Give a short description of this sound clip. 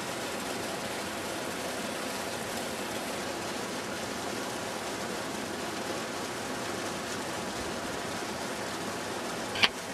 Water flowing into a stream